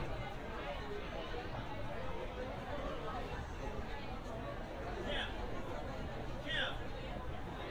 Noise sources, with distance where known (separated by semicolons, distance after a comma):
person or small group shouting